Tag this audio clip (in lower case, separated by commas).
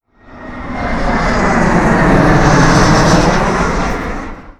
vehicle, aircraft, fixed-wing aircraft